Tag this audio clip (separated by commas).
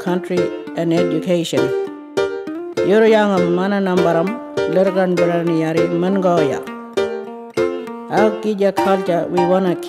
Music, Speech